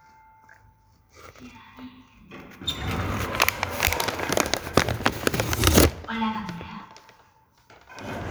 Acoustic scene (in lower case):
elevator